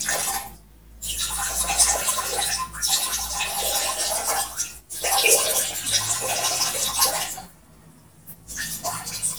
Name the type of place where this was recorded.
restroom